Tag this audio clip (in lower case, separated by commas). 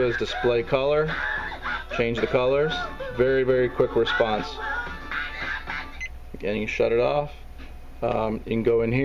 speech, music